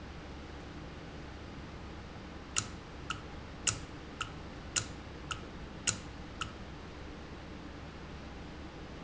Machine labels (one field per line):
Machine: valve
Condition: normal